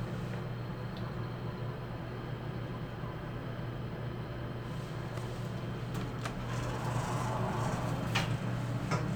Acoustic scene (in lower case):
elevator